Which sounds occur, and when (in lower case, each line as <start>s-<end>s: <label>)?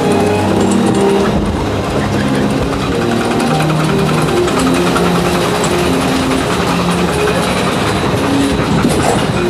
0.0s-9.4s: mechanisms
0.0s-9.4s: music
8.8s-9.4s: generic impact sounds